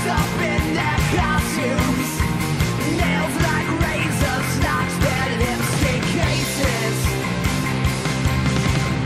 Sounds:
Music

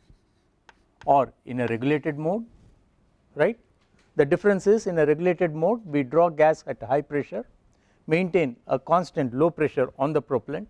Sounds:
Speech

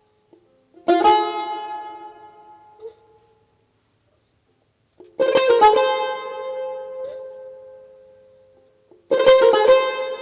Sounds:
Classical music, Music

